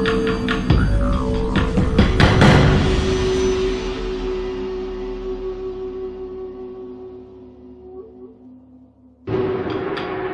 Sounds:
Music

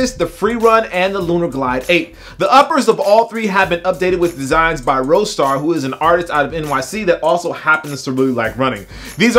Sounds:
Speech, Music

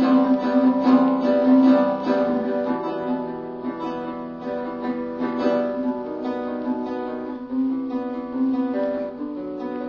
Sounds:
Acoustic guitar, Strum, Guitar, Musical instrument, Plucked string instrument, Music

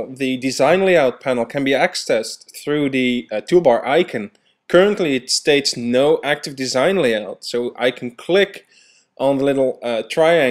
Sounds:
Speech

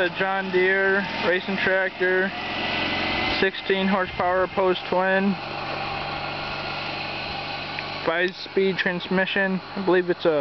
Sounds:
Speech, Vehicle

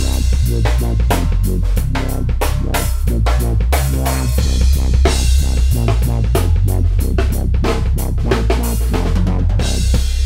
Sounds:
Electronic music, Dubstep, Music

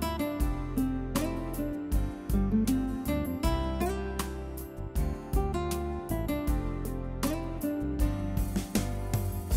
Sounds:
Music

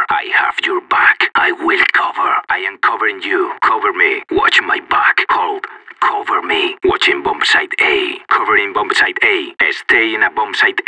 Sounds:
Speech

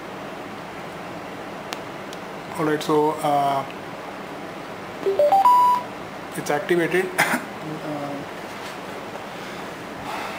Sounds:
inside a large room or hall, Speech

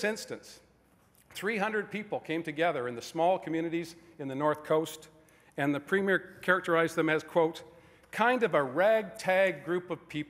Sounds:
Male speech, monologue, Speech

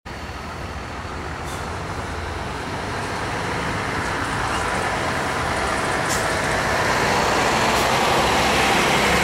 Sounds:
driving buses, Vehicle, Bus

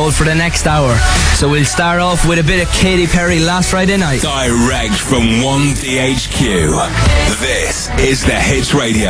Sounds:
Music, Speech

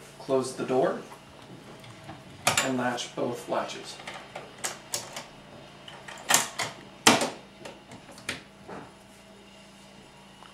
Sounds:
Speech

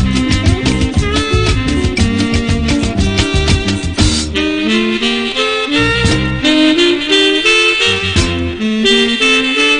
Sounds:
Music, Background music, Folk music

